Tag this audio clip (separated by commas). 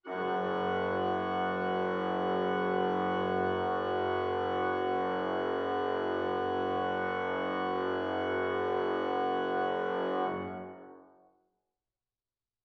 Keyboard (musical), Musical instrument, Music, Organ